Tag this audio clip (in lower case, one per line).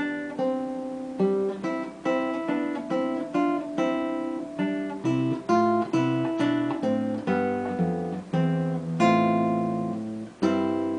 musical instrument
plucked string instrument
guitar
music
acoustic guitar
strum